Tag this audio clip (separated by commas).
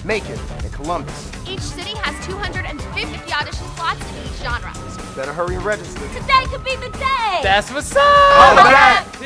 Dance music, Speech, Theme music, Music, Soundtrack music